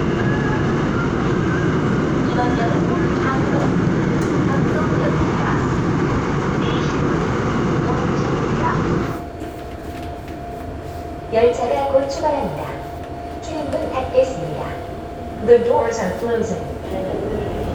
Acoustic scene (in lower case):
subway train